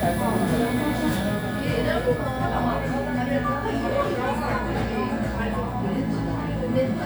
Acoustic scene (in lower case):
cafe